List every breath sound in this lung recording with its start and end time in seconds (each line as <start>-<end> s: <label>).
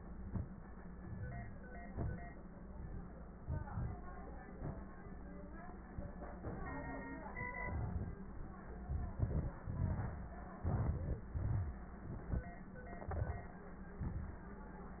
0.95-1.61 s: rhonchi